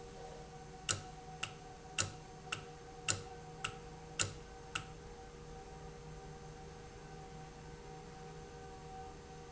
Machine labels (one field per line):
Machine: valve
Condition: normal